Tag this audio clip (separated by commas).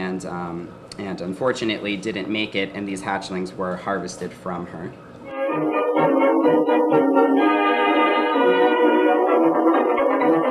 Music, inside a small room, Speech